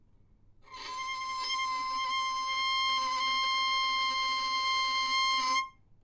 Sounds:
music, bowed string instrument, musical instrument

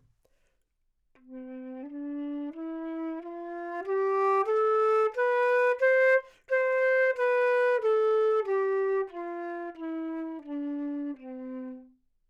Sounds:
music, musical instrument, wind instrument

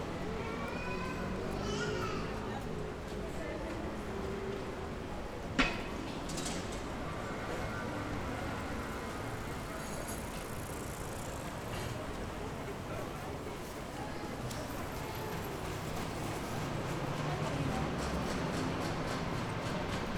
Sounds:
bicycle, vehicle

